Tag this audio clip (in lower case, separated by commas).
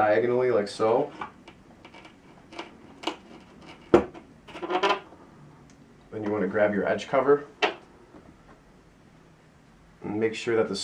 door, speech